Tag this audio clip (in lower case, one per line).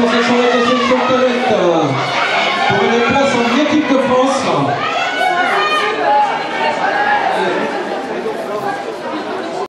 run
speech
outside, urban or man-made